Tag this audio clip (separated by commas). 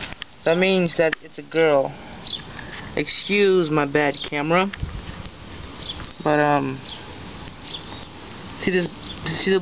dove, outside, rural or natural, Speech